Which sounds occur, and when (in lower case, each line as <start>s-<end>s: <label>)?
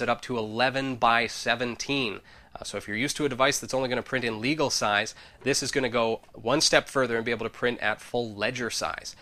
0.0s-2.2s: male speech
0.0s-9.2s: background noise
0.2s-0.2s: tick
2.2s-2.5s: breathing
2.5s-5.1s: male speech
2.5s-2.6s: tick
5.1s-5.3s: breathing
5.4s-6.2s: male speech
6.2s-6.3s: tick
6.4s-9.1s: male speech